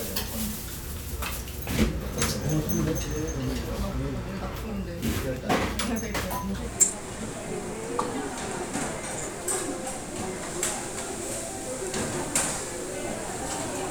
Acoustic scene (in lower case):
restaurant